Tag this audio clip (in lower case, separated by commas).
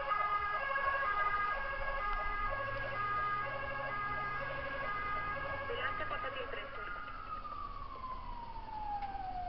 speech, fire engine